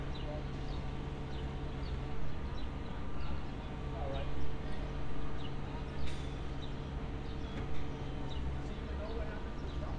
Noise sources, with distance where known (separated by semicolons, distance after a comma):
person or small group talking